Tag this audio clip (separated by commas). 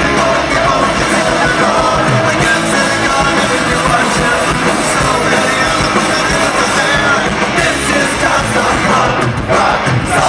Music